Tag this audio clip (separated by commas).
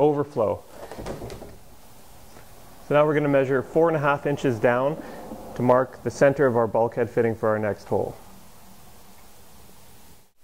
Speech